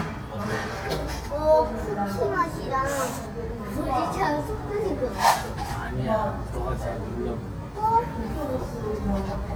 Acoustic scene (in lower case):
restaurant